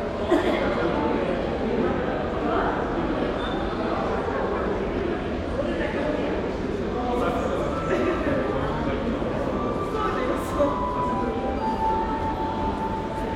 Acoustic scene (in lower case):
crowded indoor space